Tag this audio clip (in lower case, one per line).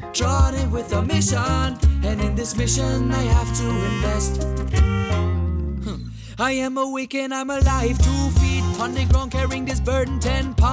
music
exciting music